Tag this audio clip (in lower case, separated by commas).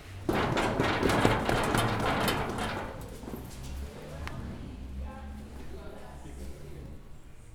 run